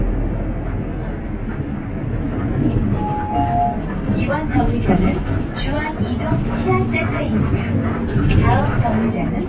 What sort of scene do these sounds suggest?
bus